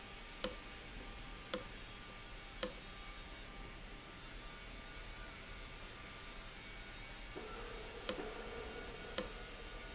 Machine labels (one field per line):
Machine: valve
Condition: abnormal